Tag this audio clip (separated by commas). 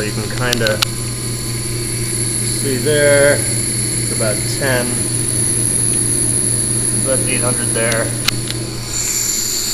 Speech